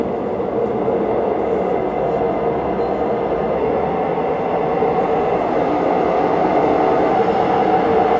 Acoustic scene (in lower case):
subway station